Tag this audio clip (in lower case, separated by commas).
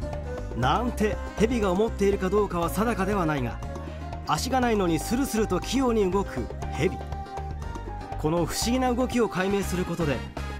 music, speech